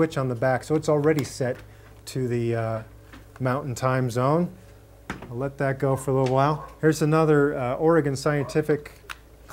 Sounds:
speech

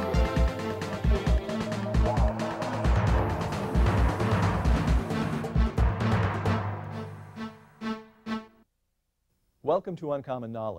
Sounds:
music, speech

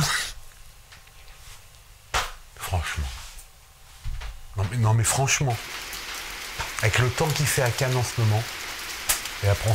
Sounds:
speech

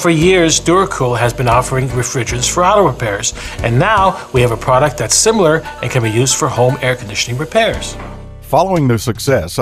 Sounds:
music, speech

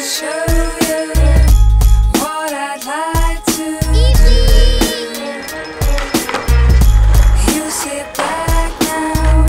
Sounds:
music, speech, skateboard

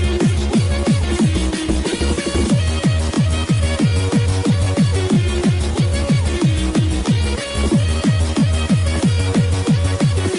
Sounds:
music, exciting music, soundtrack music

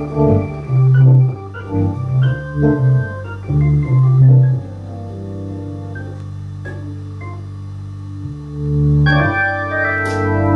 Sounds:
organ, hammond organ

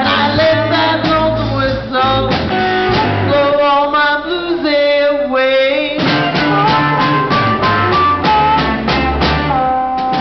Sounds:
music, singing

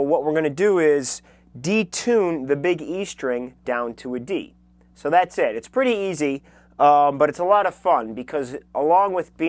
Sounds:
speech

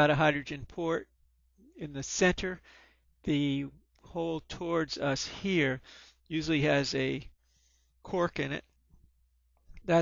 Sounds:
speech

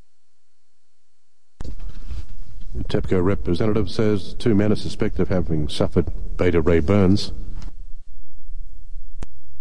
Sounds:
speech

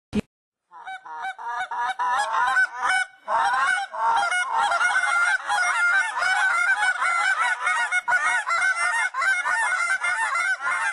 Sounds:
goose honking, honk, goose, fowl

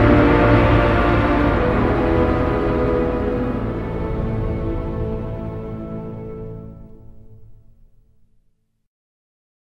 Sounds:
music, scary music

